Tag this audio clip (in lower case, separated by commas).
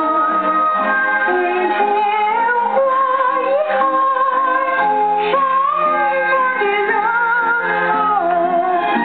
synthetic singing, music